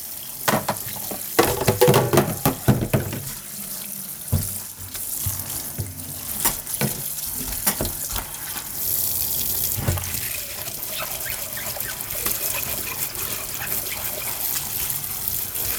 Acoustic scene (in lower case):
kitchen